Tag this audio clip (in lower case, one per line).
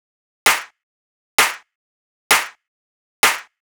hands
clapping